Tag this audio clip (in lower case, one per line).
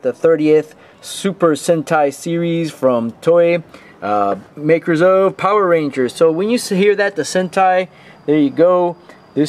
speech